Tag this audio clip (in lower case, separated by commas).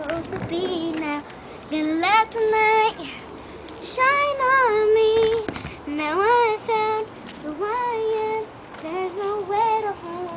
child singing